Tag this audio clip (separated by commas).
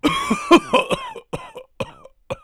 Respiratory sounds, Cough